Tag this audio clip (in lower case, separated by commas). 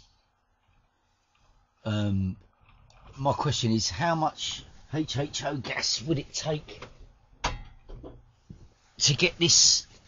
speech